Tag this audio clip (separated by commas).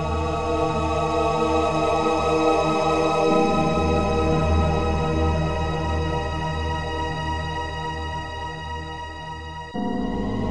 Theme music, Music